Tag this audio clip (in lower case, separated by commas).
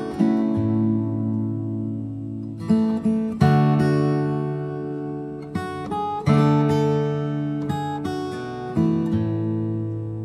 music, acoustic guitar